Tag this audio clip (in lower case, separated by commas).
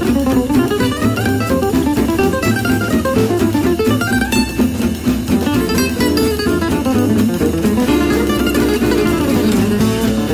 swing music, music